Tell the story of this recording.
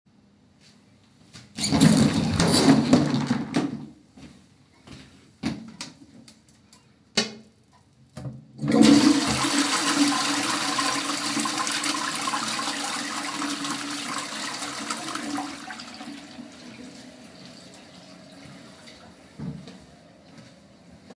I take the vacuum cleaner and vacuum the bathroom